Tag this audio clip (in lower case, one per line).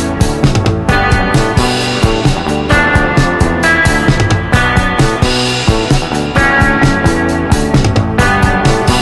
music